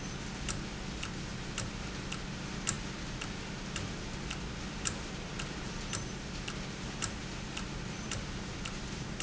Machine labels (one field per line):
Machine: valve